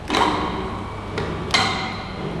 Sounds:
mechanisms

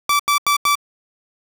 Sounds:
alarm

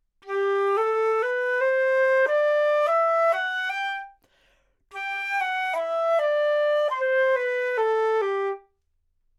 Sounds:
music, musical instrument, wind instrument

